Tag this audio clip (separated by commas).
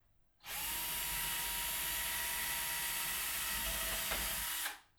Power tool, Tools, Drill